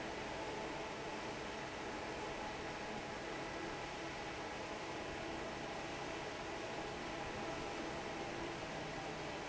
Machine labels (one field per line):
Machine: fan